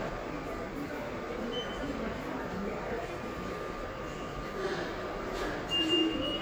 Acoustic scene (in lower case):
subway station